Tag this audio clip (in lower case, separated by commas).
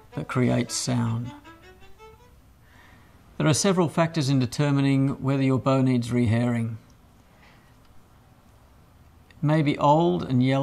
speech, fiddle, musical instrument, music